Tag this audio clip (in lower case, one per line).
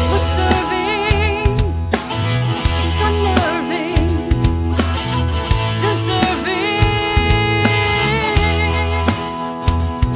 music